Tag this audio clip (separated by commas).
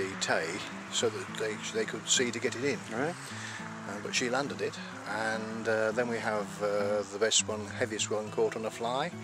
Speech, Music